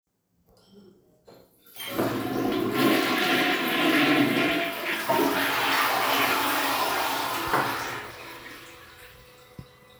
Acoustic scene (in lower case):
restroom